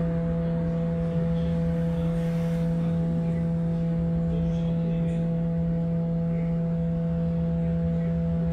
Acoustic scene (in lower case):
bus